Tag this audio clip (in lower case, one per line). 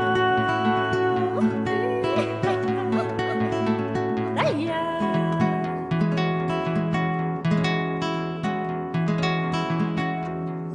music